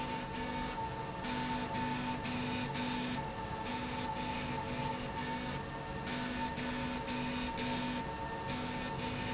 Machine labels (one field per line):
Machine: slide rail